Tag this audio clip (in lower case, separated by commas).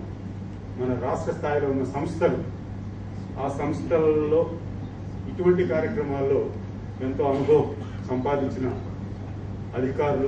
man speaking, speech